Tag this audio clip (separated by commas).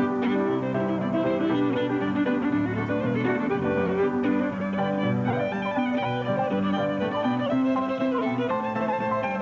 Violin, Musical instrument, Music